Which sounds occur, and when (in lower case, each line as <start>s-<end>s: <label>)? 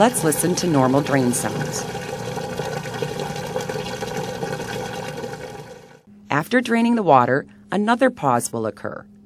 0.0s-1.8s: woman speaking
0.0s-6.0s: washing machine
0.0s-6.0s: liquid
6.0s-9.2s: mechanisms
6.3s-7.4s: woman speaking
7.4s-7.7s: breathing
7.7s-9.0s: woman speaking